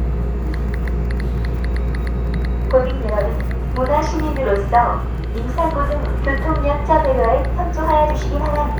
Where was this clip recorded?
on a subway train